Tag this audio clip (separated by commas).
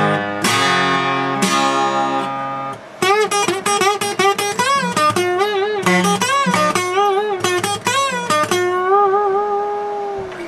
Music